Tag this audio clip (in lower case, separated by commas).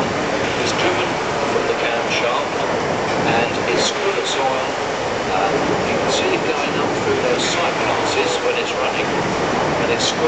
speech, engine